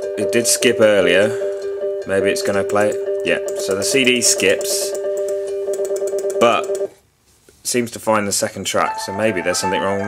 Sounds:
inside a small room, Music, Speech

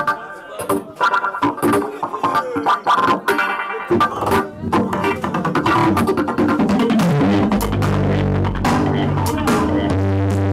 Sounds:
Music

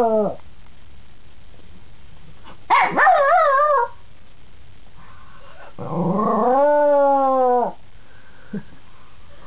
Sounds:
Dog, Animal, Bark, Domestic animals

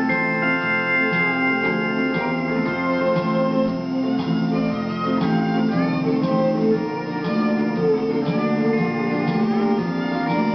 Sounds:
Musical instrument, Keyboard (musical), Music, slide guitar, Guitar

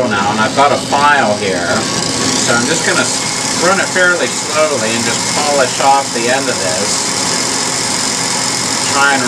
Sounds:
Tools, Speech

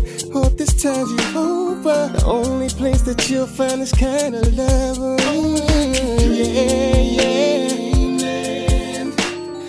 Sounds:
Rhythm and blues, Music

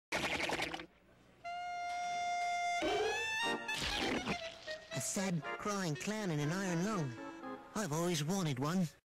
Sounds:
Speech, Music

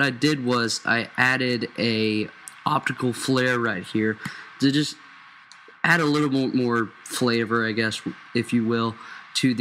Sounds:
Speech

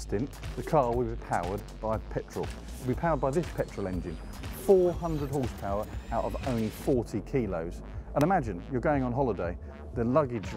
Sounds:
Speech, Engine

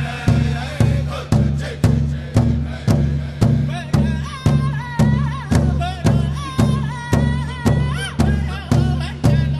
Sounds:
Music

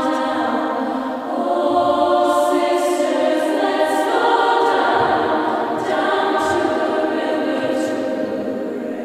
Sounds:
singing choir

